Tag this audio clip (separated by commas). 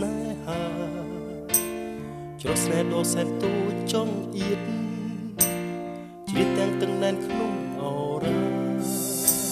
Music